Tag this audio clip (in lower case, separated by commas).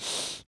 respiratory sounds, breathing